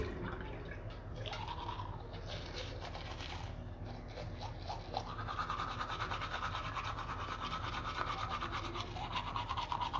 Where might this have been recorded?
in a restroom